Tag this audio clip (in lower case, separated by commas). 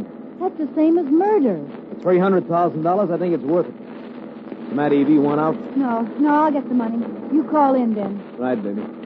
speech, radio